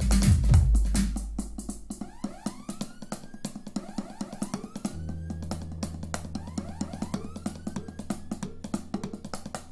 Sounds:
music
musical instrument
drum kit
drum
inside a large room or hall
percussion

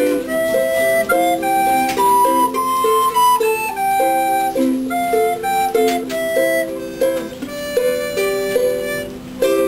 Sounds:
music
musical instrument
ukulele

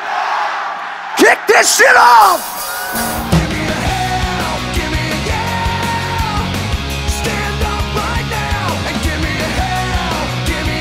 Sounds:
music
speech

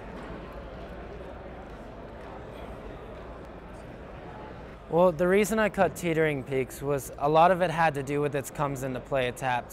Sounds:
speech

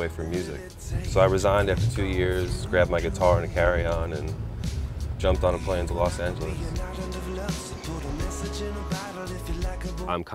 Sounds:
music
speech

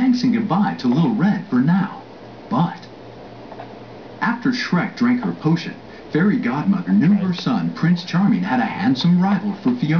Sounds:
speech

